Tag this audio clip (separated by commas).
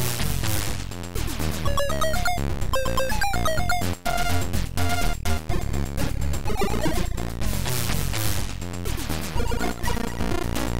Music